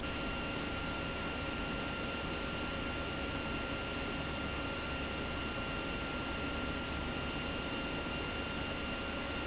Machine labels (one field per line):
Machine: pump